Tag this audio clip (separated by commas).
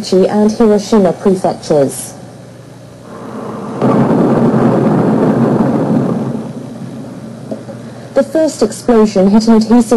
Speech